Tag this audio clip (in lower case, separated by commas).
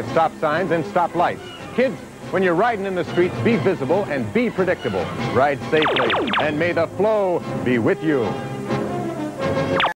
speech, music